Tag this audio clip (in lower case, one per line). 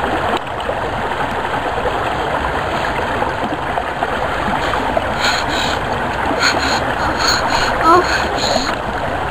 stream